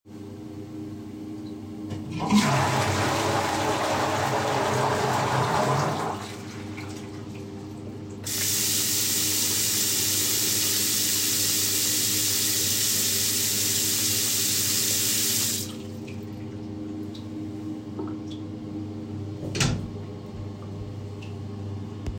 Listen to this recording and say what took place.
Use the toilet, flush the toilet wash my hands and close the door